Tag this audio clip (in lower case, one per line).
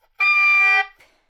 wind instrument
musical instrument
music